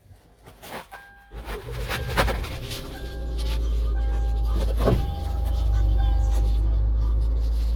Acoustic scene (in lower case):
car